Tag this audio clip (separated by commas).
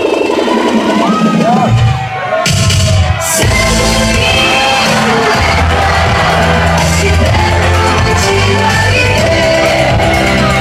inside a large room or hall, Shout, Speech, Music, Singing